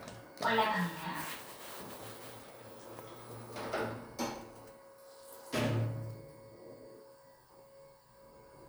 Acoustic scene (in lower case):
elevator